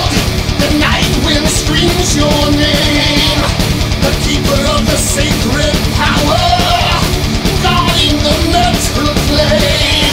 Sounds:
sampler, music

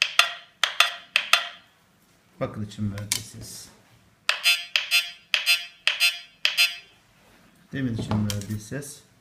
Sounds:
speech

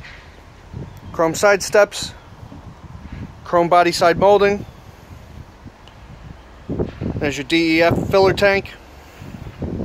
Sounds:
speech

